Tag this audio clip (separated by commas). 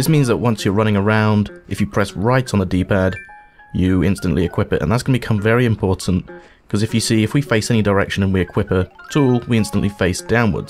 Music, Speech